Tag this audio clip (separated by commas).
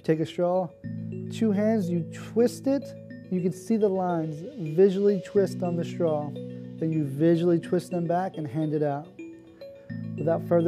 Music, Speech